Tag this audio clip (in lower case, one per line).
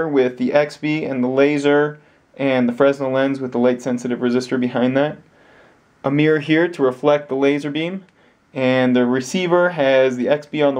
speech